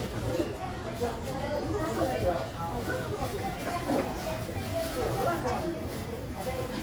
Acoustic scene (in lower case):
crowded indoor space